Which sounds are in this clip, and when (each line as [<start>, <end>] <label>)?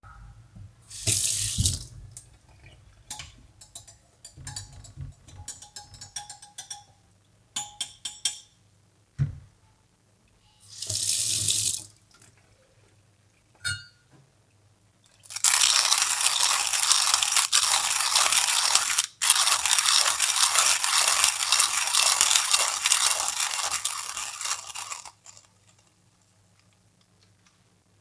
[0.81, 2.05] running water
[2.91, 6.99] cutlery and dishes
[7.48, 8.52] cutlery and dishes
[9.14, 9.41] wardrobe or drawer
[10.64, 12.05] running water
[13.51, 13.93] cutlery and dishes
[15.11, 25.61] coffee machine